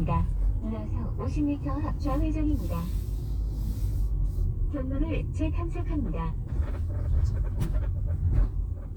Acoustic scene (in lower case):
car